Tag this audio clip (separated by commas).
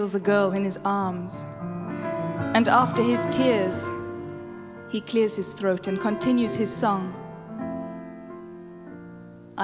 Musical instrument, Speech, Music, fiddle